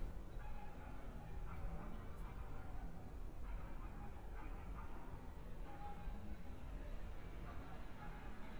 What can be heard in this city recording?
dog barking or whining